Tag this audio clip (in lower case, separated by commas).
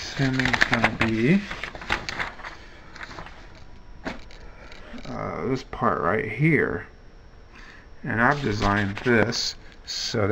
inside a small room, speech